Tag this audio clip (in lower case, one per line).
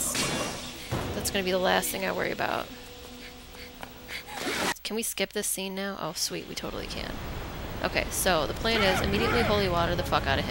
speech
music